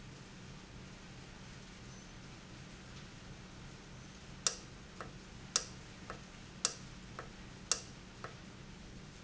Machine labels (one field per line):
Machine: valve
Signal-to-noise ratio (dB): 6 dB